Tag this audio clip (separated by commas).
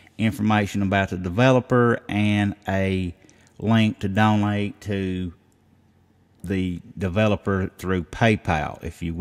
Speech